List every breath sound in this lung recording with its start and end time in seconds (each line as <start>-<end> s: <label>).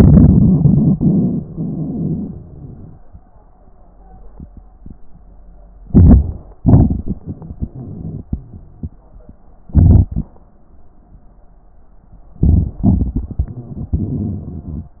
5.86-6.64 s: inhalation
5.86-6.64 s: crackles
6.64-8.45 s: exhalation
6.67-8.41 s: crackles
9.66-10.38 s: inhalation
9.68-10.36 s: crackles
12.36-12.86 s: inhalation
12.80-14.90 s: exhalation
12.80-14.90 s: crackles